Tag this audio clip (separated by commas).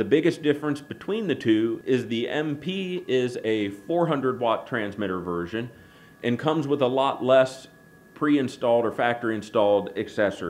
Speech